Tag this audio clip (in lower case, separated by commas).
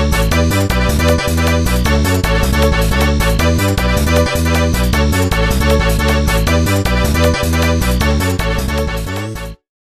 theme music, music